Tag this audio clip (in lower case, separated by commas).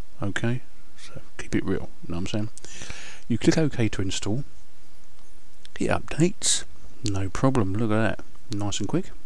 speech